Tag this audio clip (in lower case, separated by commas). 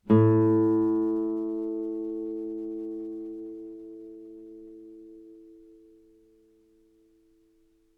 music, guitar, musical instrument, plucked string instrument